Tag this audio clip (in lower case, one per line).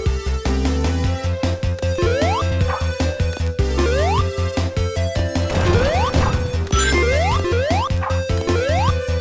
music